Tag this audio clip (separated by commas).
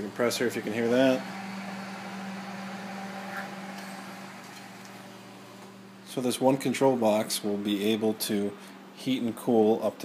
Speech